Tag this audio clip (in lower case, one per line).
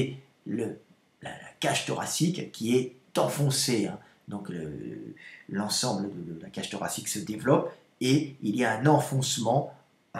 speech